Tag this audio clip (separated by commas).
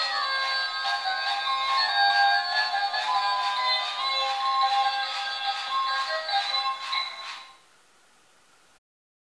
Sound effect, Music